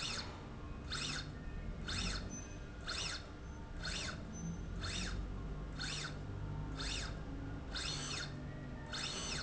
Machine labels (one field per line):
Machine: slide rail